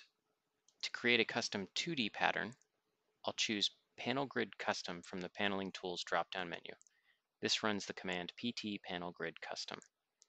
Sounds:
speech

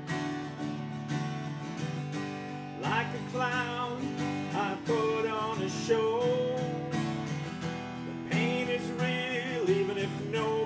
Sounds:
bass guitar, musical instrument, strum, guitar, plucked string instrument, music

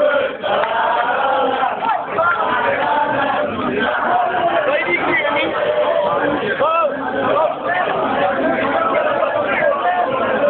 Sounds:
speech, male singing

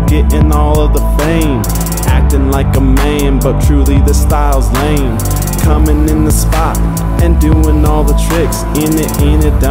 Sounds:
music

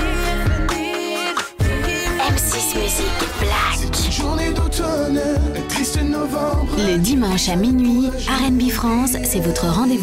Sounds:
speech, music

